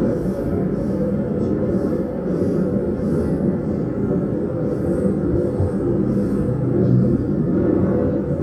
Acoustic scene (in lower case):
subway train